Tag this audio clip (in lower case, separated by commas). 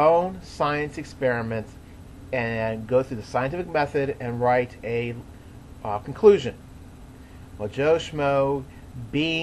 speech